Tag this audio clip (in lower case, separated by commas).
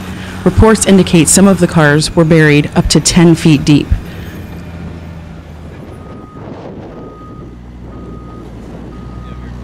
speech